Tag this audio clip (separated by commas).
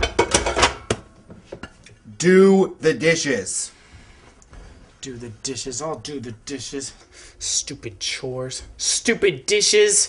dishes, pots and pans